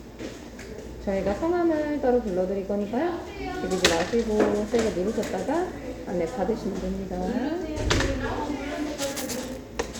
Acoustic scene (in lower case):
crowded indoor space